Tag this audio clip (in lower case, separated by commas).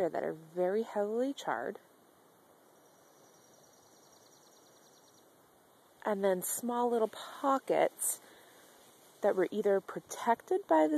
speech